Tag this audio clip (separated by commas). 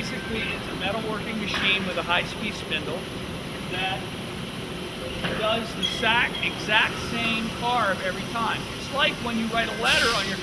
Speech